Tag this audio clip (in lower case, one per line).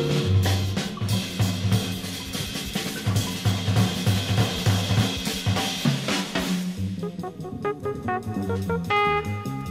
music